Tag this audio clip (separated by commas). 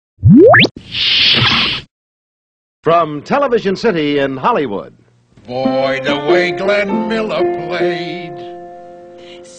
inside a large room or hall, Speech, Music